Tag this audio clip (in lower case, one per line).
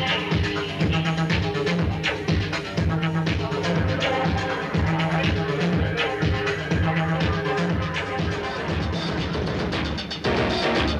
music